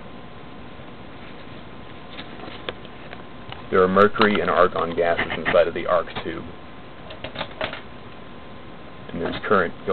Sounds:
Speech

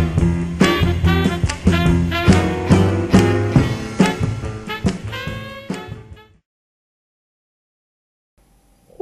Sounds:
inside a large room or hall, Music, Pigeon

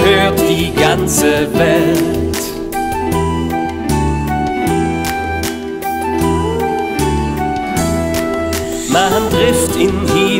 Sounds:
Music

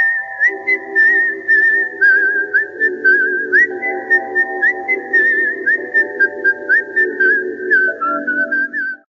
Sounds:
Music

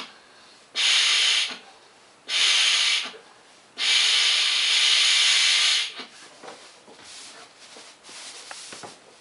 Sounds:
inside a small room

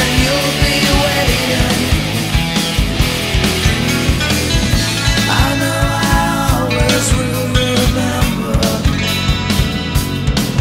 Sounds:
Progressive rock, Singing

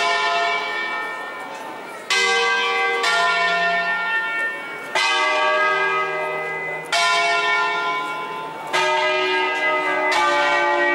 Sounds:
Church bell

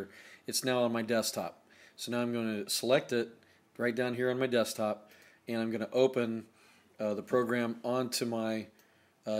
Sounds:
Speech

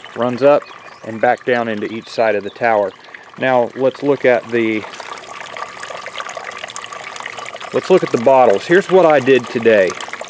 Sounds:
outside, urban or man-made, Speech

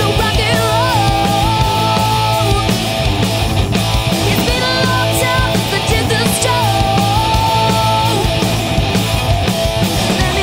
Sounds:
Music, Rock and roll

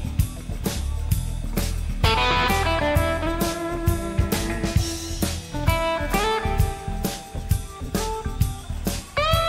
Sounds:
inside a large room or hall, Music

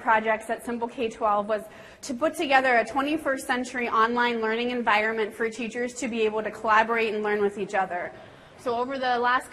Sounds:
Speech

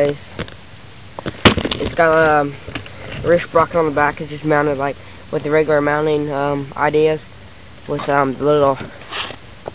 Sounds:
Speech

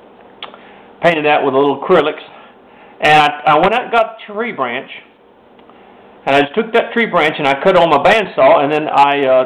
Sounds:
Speech

